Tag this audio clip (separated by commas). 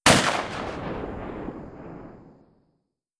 Explosion, Gunshot